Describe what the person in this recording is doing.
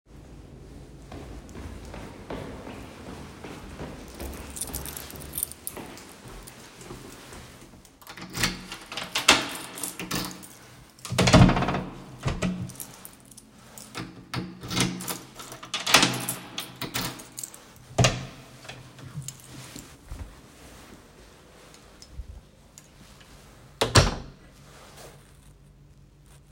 I walked to the door holding my keys. I inserted the key into the lock and turned it. Then opened the door and closed it.